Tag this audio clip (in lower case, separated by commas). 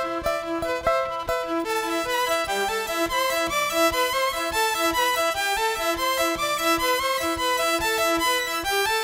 music